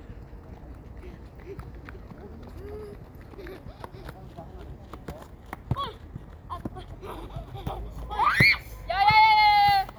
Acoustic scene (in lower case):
park